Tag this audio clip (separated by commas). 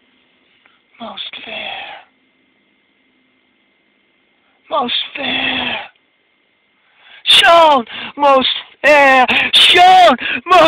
Speech, outside, rural or natural